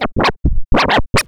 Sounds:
scratching (performance technique), music, musical instrument

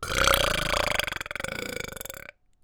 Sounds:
eructation

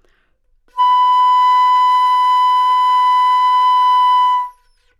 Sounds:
woodwind instrument, music, musical instrument

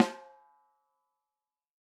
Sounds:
music, snare drum, musical instrument, drum, percussion

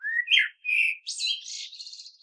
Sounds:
bird, animal, wild animals

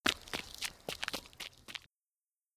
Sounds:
run

